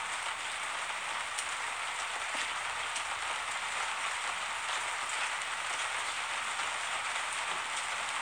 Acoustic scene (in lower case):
street